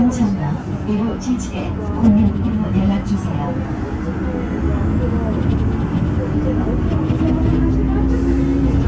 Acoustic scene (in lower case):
bus